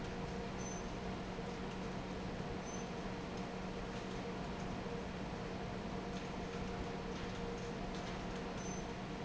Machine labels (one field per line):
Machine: fan